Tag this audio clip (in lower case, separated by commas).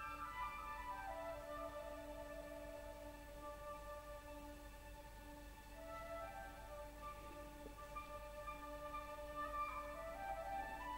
musical instrument, music